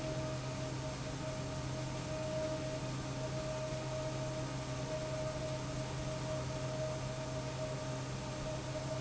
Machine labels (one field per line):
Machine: pump